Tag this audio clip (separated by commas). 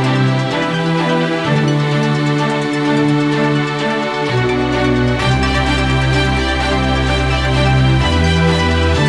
Theme music, Music